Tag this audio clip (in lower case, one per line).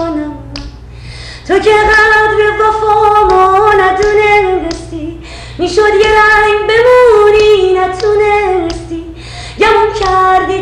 female singing